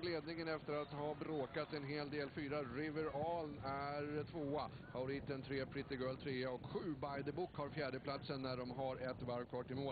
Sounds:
speech

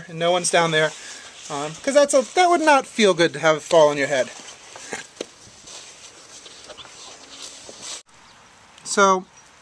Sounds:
outside, rural or natural, speech

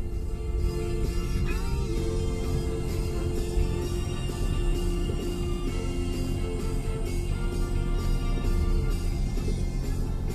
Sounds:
car, vehicle, music

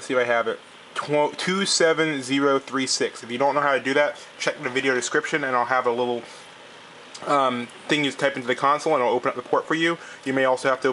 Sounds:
speech

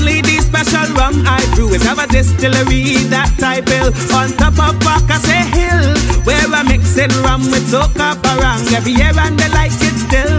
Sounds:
funny music, music

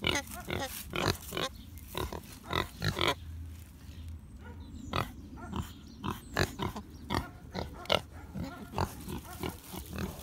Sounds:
pig oinking

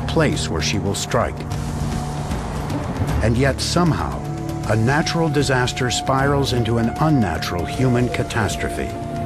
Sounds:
speech, music

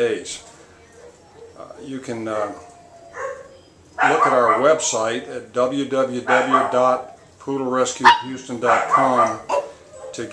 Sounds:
domestic animals, speech, dog, animal, yip

